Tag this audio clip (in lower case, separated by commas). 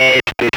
speech, human voice